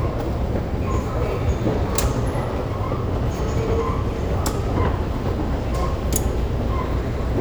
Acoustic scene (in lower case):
subway station